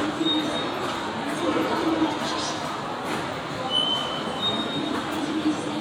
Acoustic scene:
subway station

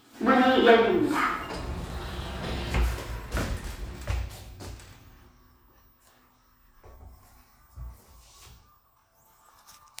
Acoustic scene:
elevator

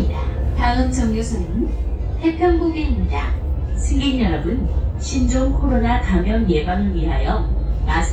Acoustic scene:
bus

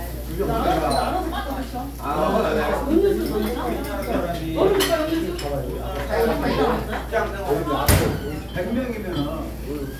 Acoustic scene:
crowded indoor space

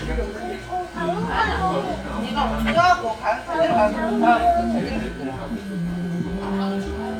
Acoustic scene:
crowded indoor space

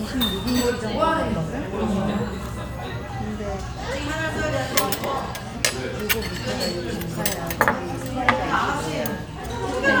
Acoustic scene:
restaurant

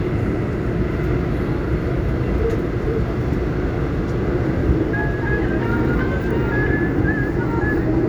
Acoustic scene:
subway train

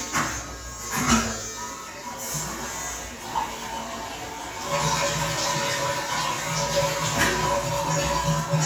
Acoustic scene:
restroom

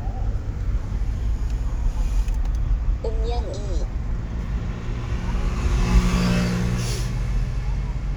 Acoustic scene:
car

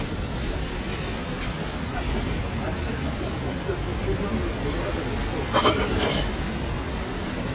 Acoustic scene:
street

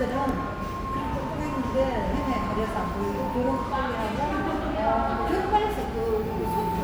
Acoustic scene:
cafe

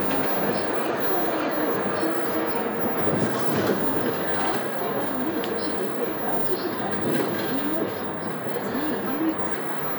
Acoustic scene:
bus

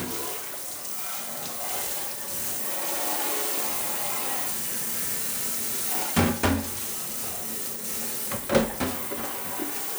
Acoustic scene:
kitchen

